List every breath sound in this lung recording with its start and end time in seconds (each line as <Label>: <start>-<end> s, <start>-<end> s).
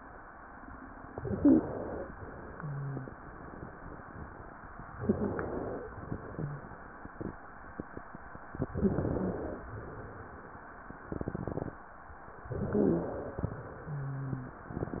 Inhalation: 1.12-2.09 s, 4.96-5.86 s, 8.69-9.60 s, 12.47-13.39 s
Exhalation: 2.19-3.17 s, 5.90-6.89 s, 9.68-10.66 s, 13.57-14.60 s
Wheeze: 1.31-1.65 s, 2.51-3.09 s, 4.98-5.32 s, 6.31-6.65 s, 8.78-9.40 s, 8.78-9.40 s, 12.55-13.13 s, 13.81-14.60 s